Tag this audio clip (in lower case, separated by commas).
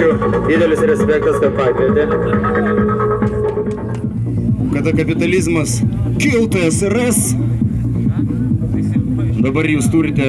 music, speech